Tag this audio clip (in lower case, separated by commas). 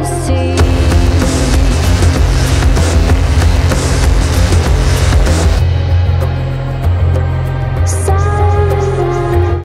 music